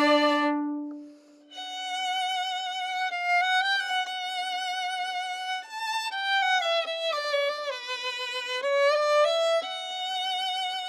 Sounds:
music, violin, musical instrument

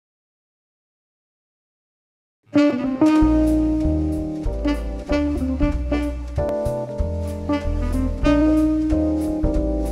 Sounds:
guitar, music, musical instrument, bowed string instrument, jazz

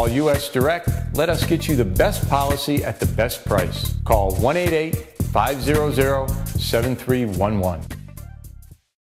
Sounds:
speech, music

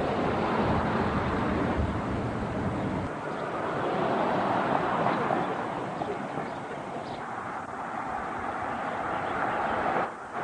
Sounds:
animal

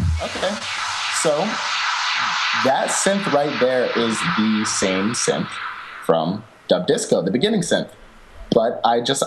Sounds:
music, speech

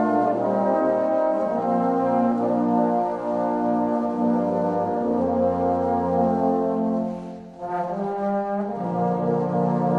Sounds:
trombone, brass instrument, playing trombone

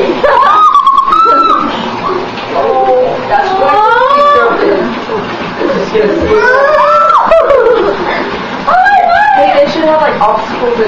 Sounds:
speech

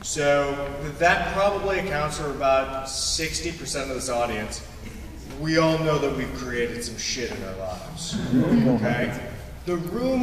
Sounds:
speech

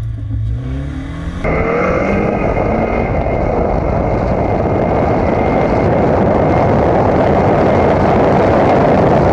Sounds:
vehicle, car, auto racing

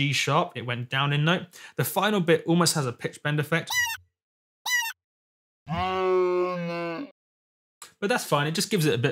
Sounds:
speech

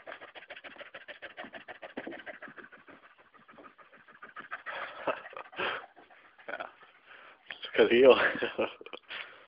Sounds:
gasp, animal, speech

